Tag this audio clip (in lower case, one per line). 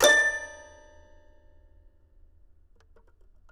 keyboard (musical)
music
musical instrument